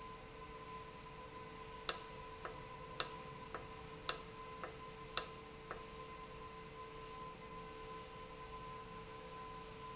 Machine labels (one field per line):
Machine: valve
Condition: normal